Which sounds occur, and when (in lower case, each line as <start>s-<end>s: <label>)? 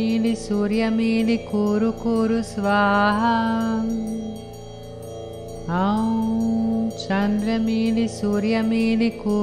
0.0s-3.8s: female singing
0.0s-9.4s: music
5.5s-6.3s: female singing
6.9s-9.4s: female singing